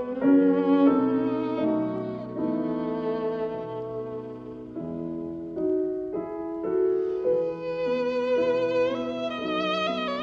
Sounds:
Violin, Musical instrument, Music

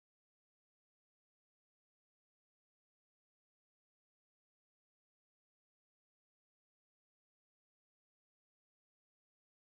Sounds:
Music, Speech

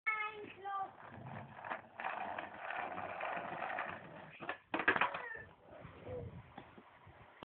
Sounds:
Skateboard, Speech

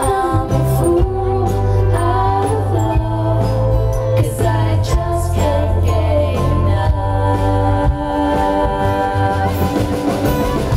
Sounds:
Music

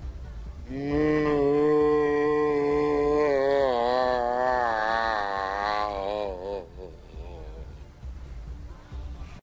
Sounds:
Music

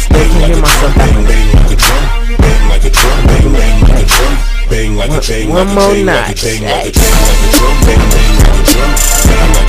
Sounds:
Music, Drum kit, Musical instrument, Drum

